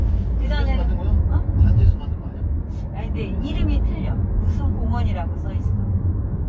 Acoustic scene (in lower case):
car